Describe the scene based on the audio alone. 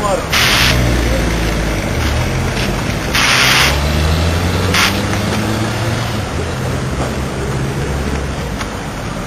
A motor vehicle passes by with the sound of gears grinding